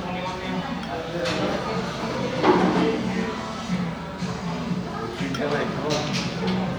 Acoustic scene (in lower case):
cafe